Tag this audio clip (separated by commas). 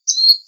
Bird vocalization, tweet, Wild animals, Animal, Bird